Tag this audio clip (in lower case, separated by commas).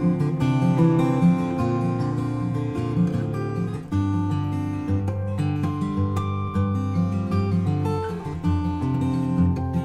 music